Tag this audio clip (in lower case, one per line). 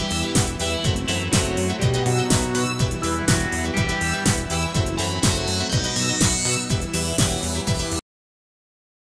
music